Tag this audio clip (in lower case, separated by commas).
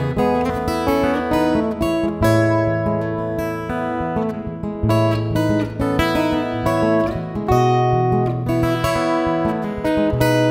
plucked string instrument, musical instrument, guitar, acoustic guitar, music